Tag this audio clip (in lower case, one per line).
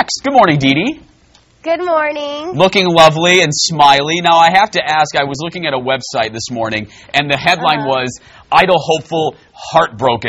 speech